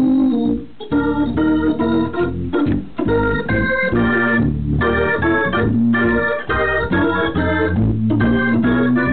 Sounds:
Music

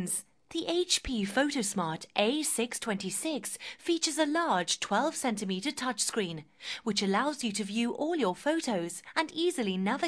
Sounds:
Speech

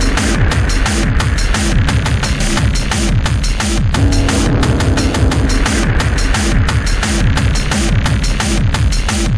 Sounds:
Music, Electronic music, Electronica

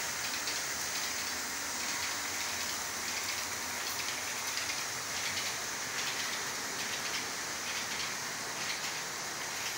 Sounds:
Rail transport, Train, train wagon

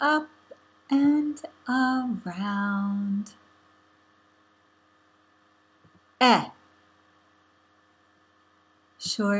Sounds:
Speech

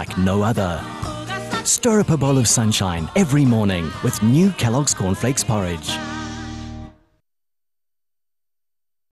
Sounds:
Music, Speech

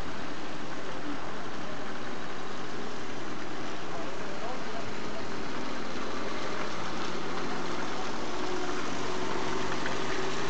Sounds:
Vehicle, Car

